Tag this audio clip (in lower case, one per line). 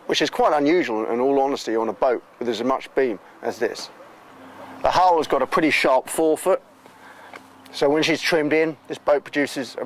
speech